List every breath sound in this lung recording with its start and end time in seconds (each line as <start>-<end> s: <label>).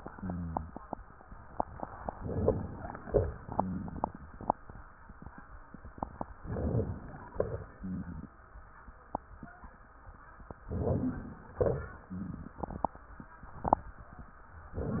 2.16-2.90 s: inhalation
2.99-4.79 s: exhalation
2.99-4.79 s: crackles
3.54-4.15 s: rhonchi
6.39-7.33 s: inhalation
7.38-8.34 s: exhalation
7.80-8.31 s: rhonchi
10.70-11.59 s: inhalation
11.60-13.09 s: exhalation
11.60-13.09 s: crackles